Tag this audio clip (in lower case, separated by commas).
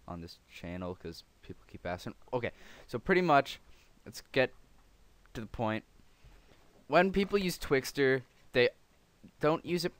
speech